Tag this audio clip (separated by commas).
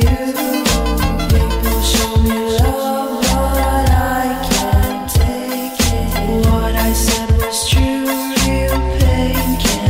Music, New-age music, Blues